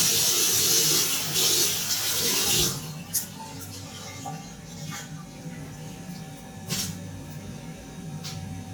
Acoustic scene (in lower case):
restroom